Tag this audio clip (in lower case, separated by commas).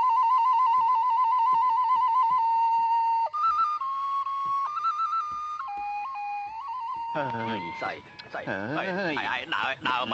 inside a small room, outside, rural or natural, music, speech